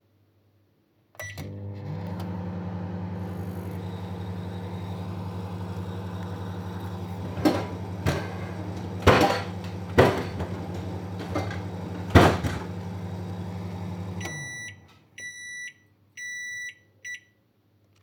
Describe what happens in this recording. I interacted with a wardrobe by opening and closing its doors. Shortly afterward a microwave was used. The sounds occur sequentially in the scene.